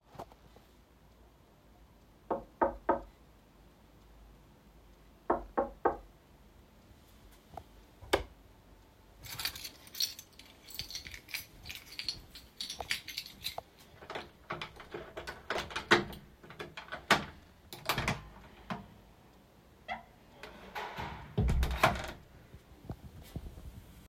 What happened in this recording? Someone knocked on my door. I switched on the light, took my keys and walked to the door. Then I opened the door and closed it